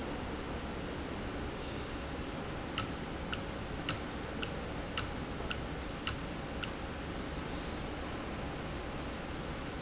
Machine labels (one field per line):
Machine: valve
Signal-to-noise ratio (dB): -6 dB